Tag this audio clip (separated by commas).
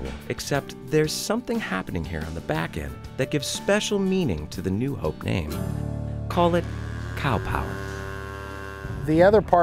livestock, Moo, Cattle